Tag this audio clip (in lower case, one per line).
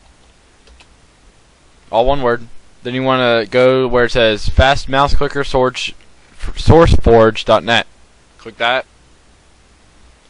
speech